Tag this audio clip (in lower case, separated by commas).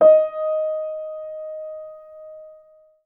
music, musical instrument, keyboard (musical), piano